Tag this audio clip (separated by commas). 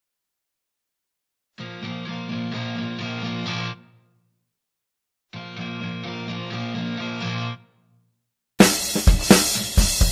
Cymbal